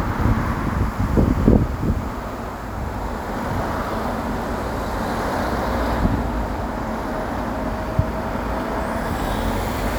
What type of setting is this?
street